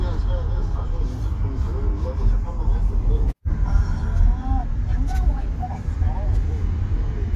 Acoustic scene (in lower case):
car